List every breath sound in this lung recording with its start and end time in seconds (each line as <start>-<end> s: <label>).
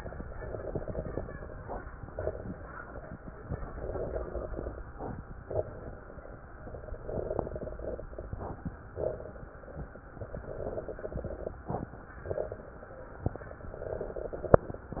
0.28-1.63 s: exhalation
0.28-1.63 s: crackles
2.09-3.11 s: inhalation
2.09-3.11 s: crackles
3.47-4.82 s: exhalation
3.47-4.82 s: crackles
5.48-6.51 s: inhalation
5.48-6.51 s: crackles
6.62-8.10 s: exhalation
6.62-8.10 s: crackles
8.94-10.04 s: inhalation
8.94-10.04 s: crackles
10.17-11.59 s: exhalation
10.17-11.59 s: crackles
12.29-13.40 s: inhalation
12.29-13.40 s: crackles
13.62-14.87 s: exhalation
13.62-14.87 s: crackles